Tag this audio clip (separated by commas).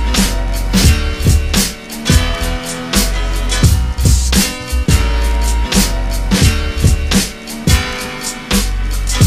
Music